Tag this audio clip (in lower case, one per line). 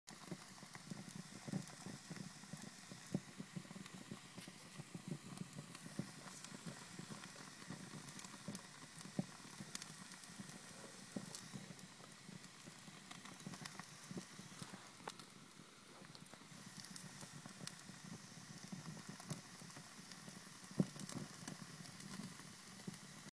fire